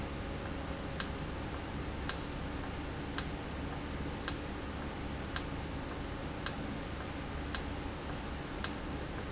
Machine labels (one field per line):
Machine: valve